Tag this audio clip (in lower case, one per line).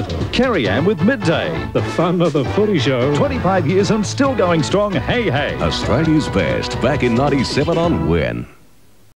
television
speech
music